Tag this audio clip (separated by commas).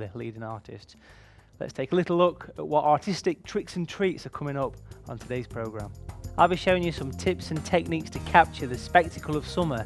Speech, Music